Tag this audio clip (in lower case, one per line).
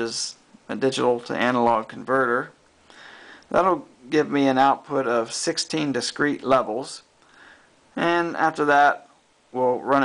speech